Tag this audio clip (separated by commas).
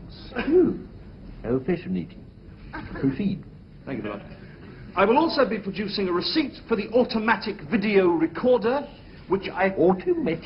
Speech